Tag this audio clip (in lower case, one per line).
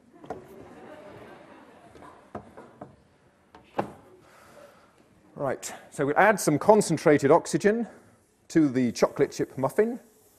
speech